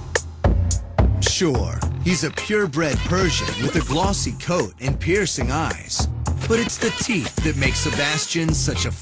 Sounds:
speech
music

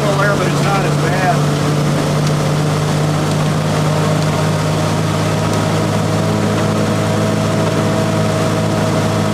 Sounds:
speech

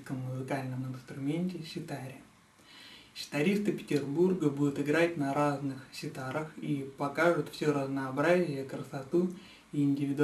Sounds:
speech

